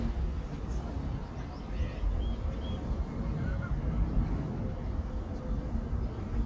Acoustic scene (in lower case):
park